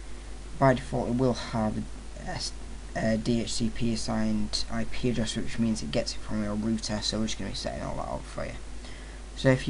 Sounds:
speech

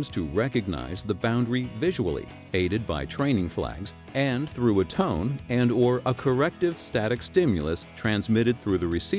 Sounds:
speech, music

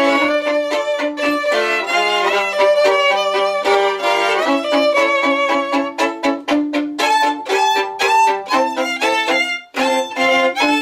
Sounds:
violin, music, musical instrument

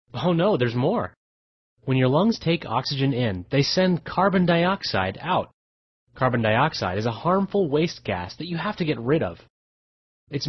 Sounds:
speech

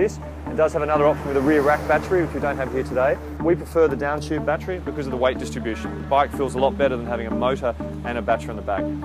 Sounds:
music, speech

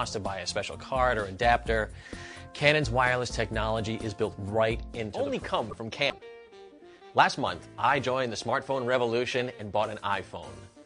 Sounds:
music, speech

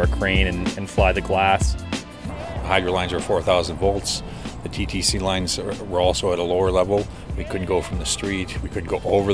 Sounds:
music, speech

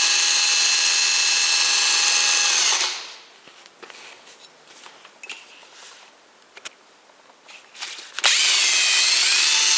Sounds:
drill, tools, power tool

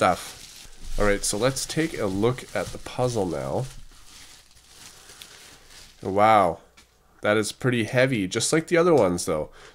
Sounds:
crumpling, speech

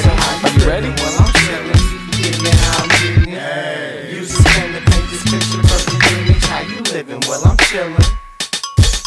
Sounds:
hip hop music, music

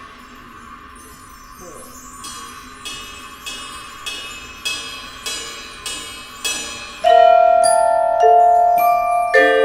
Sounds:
music, speech

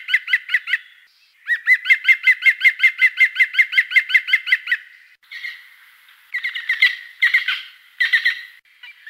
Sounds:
bird call, bird, bird chirping, chirp

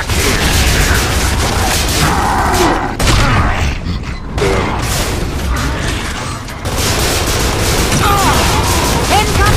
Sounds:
speech

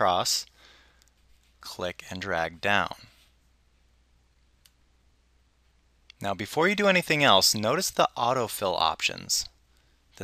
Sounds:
speech

